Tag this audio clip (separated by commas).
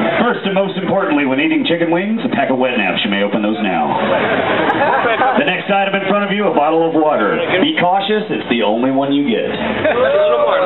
Speech